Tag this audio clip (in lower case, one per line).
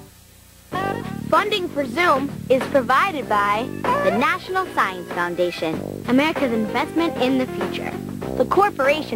speech
music